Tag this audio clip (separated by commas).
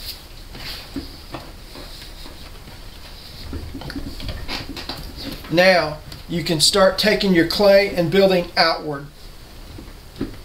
Speech